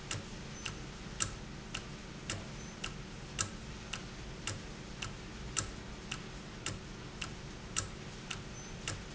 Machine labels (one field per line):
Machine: valve